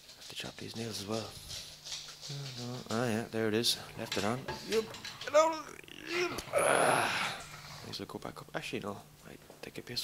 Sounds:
speech

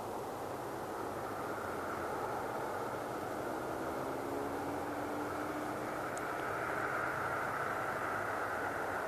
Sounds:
owl hooting

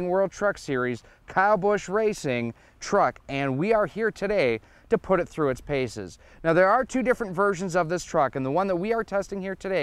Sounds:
speech

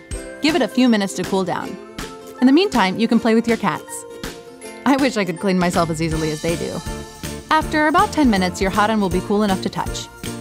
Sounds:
speech, music

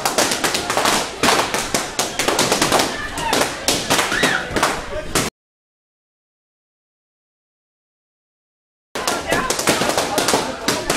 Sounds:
speech

